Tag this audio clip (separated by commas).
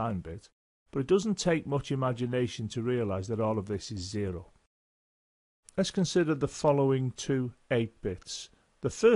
Speech